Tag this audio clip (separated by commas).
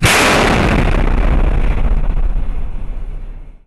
Explosion